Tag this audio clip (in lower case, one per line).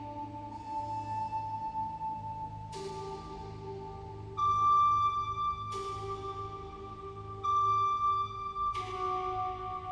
music